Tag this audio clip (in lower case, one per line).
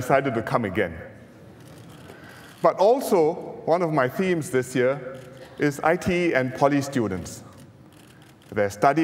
man speaking
monologue
speech